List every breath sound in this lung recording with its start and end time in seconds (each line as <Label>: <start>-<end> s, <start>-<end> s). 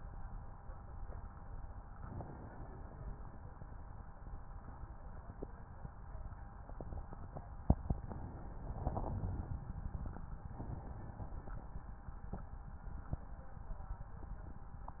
Inhalation: 1.93-3.52 s, 7.89-9.48 s, 10.49-12.10 s
Wheeze: 2.67-3.33 s
Crackles: 8.64-9.48 s